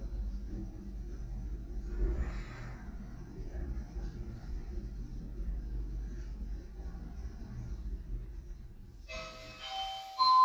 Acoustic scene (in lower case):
elevator